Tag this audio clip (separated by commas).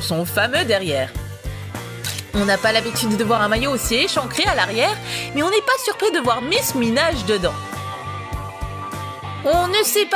Music, Speech